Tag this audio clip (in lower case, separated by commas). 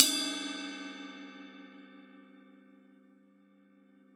music, cymbal, percussion, musical instrument, crash cymbal